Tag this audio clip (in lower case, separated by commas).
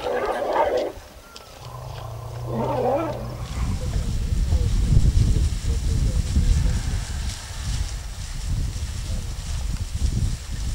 elephant trumpeting